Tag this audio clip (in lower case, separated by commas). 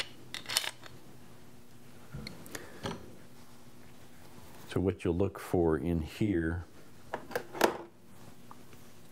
speech